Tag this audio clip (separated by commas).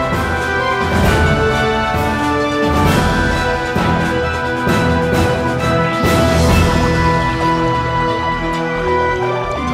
Music